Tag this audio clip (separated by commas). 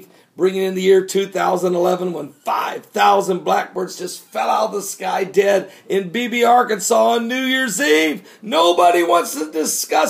Speech